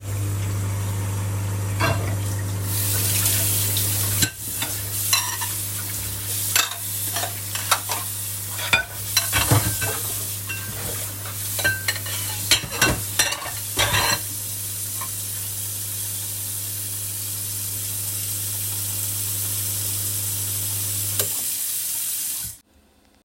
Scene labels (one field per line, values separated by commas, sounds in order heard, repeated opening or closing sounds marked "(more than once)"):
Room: kitchen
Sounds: microwave, cutlery and dishes, running water